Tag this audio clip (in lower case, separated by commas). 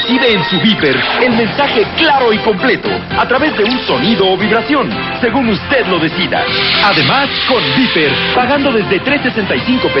speech, music